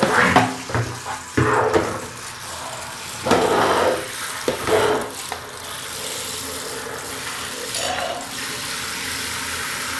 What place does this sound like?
restroom